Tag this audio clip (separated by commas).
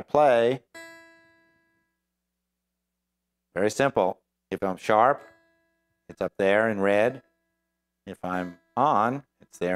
Musical instrument, Acoustic guitar, Speech, Guitar, Plucked string instrument, Music